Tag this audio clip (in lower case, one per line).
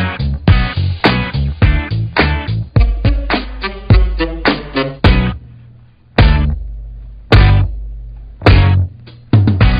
music